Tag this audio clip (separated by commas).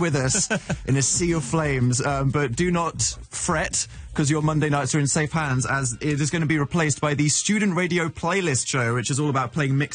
Speech